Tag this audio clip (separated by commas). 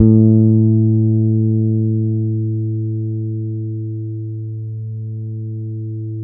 Bass guitar, Musical instrument, Guitar, Plucked string instrument, Music